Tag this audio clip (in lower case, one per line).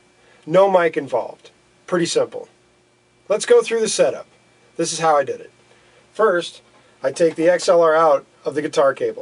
speech